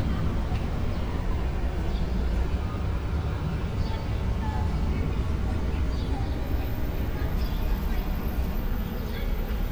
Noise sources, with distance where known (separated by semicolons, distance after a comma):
person or small group talking, far